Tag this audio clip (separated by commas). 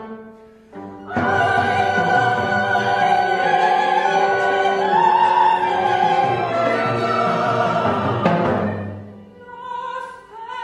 Classical music, fiddle, Music, Opera, Orchestra